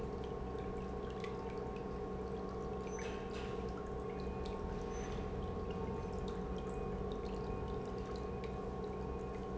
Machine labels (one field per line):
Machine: pump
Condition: normal